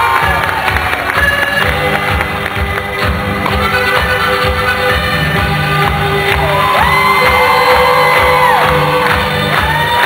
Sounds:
music
inside a public space

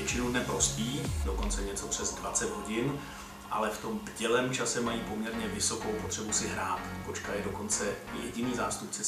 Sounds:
speech
music

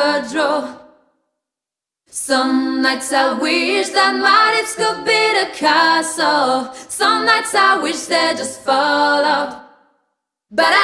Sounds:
singing

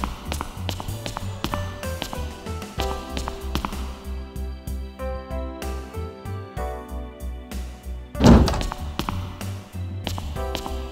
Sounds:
music

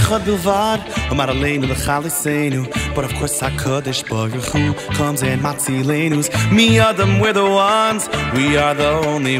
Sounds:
music

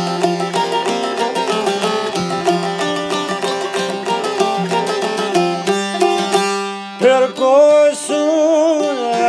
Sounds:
plucked string instrument
music

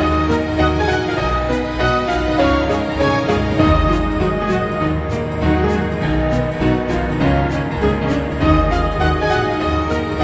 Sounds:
music

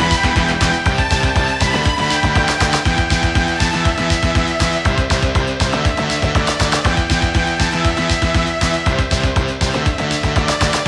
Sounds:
music

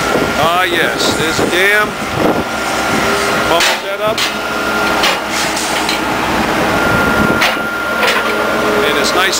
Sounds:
speech

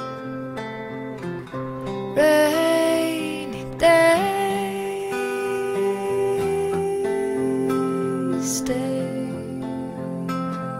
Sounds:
music

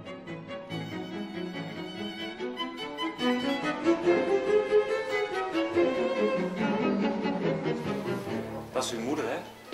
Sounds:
speech
music

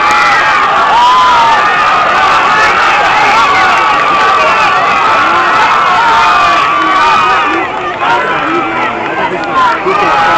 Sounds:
male speech

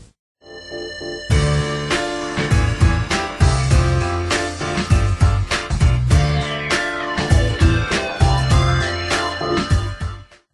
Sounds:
background music
music

